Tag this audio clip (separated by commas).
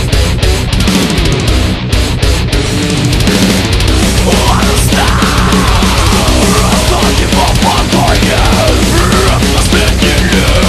Music